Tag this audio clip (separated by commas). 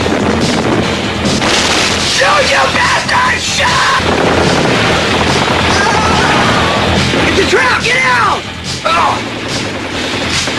Speech